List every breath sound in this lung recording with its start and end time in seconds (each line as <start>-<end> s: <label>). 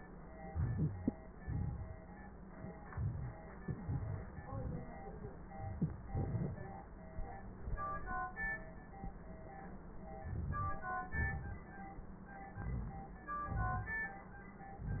0.37-1.38 s: inhalation
0.47-1.14 s: wheeze
1.38-2.03 s: exhalation
1.38-2.03 s: crackles
2.82-3.62 s: inhalation
2.82-3.62 s: crackles
3.61-4.38 s: exhalation
3.64-4.38 s: crackles
10.16-10.97 s: inhalation
10.16-10.97 s: crackles
10.99-11.75 s: exhalation
10.99-11.75 s: crackles
12.53-13.31 s: inhalation
12.53-13.31 s: crackles
13.32-14.31 s: exhalation
13.32-14.31 s: crackles